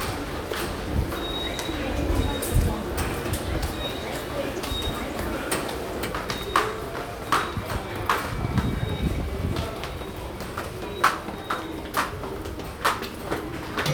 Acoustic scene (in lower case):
subway station